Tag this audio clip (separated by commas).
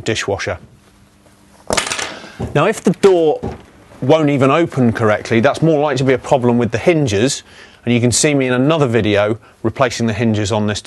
Speech